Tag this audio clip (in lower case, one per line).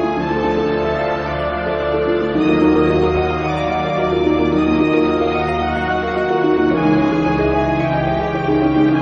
music